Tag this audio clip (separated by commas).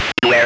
Human voice, Speech